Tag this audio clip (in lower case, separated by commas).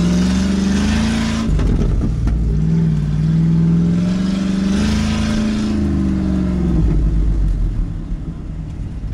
vehicle